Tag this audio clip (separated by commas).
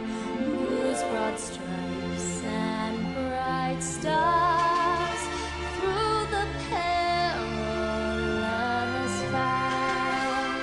Female singing, Music